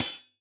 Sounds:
music, percussion, musical instrument, hi-hat, cymbal

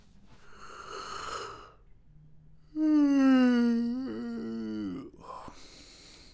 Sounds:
human voice

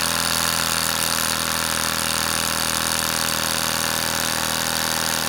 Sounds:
tools

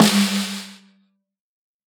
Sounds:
music, musical instrument, snare drum, percussion, drum

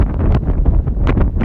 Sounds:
wind

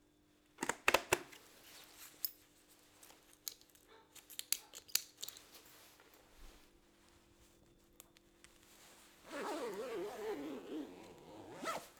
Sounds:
domestic sounds, zipper (clothing)

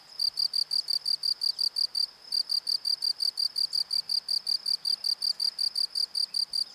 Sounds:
animal, cricket, wild animals, insect

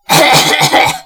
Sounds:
respiratory sounds, cough

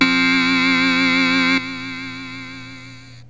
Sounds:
musical instrument, music, keyboard (musical)

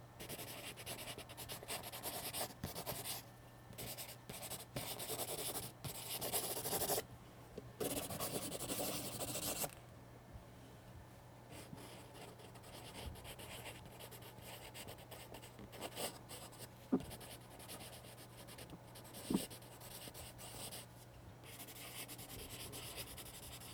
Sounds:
writing, domestic sounds

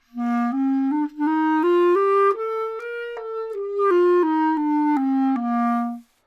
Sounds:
woodwind instrument, music, musical instrument

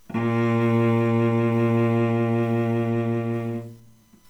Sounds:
musical instrument, bowed string instrument, music

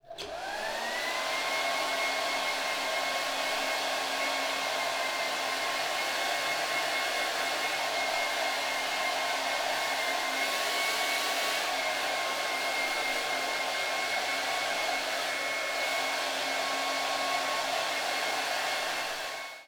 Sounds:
domestic sounds

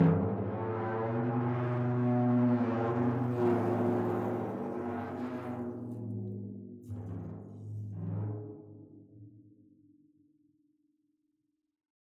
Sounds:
percussion, drum, music, musical instrument

